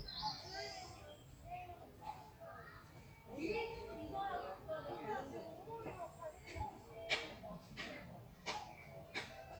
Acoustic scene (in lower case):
park